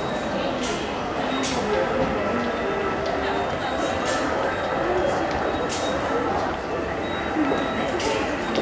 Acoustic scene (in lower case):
subway station